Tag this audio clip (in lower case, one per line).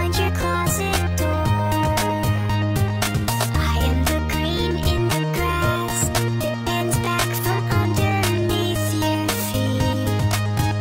music